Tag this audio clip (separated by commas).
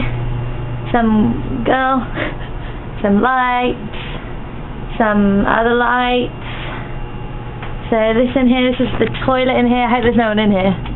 Speech